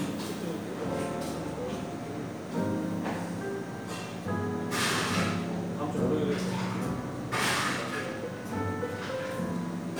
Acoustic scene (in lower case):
cafe